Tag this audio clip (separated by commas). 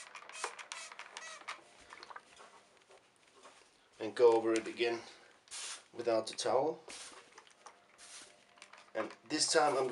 inside a small room, Speech